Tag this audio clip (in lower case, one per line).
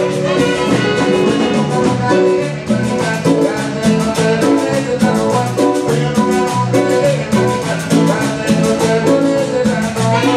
music
ska
funk
exciting music
pop music